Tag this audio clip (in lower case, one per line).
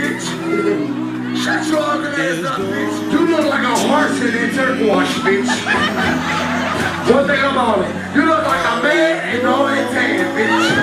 laughter